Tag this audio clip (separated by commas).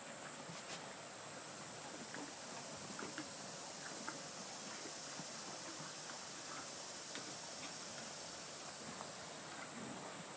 outside, rural or natural